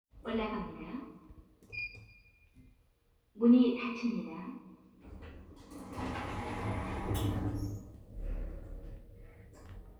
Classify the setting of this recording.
elevator